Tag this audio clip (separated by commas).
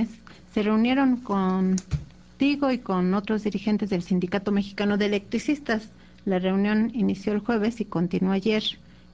Speech